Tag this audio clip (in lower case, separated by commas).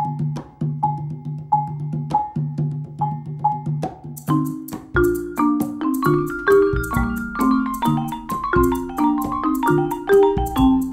drum, percussion